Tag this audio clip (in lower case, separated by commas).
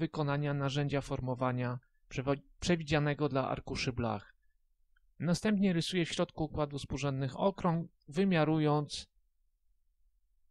speech